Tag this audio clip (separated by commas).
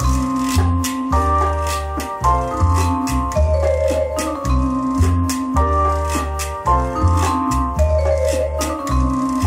Percussion, Electric piano, Jazz, Music